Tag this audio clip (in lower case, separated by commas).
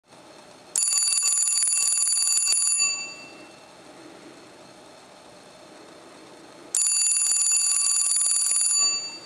telephone